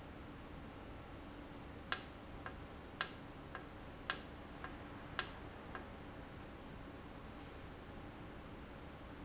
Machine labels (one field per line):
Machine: valve